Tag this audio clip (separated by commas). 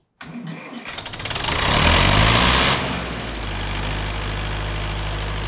Engine, vroom